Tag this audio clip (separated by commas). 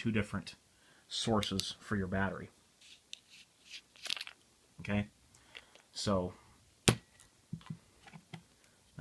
Speech, inside a small room